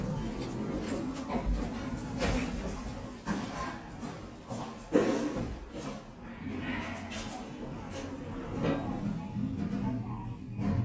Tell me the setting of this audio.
elevator